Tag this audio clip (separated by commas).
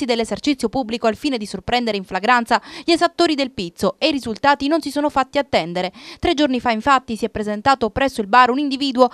Speech